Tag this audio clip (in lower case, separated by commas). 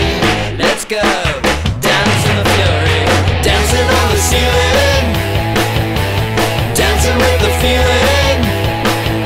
progressive rock, music